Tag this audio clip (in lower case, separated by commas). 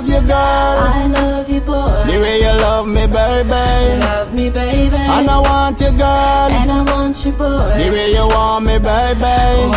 pop music, music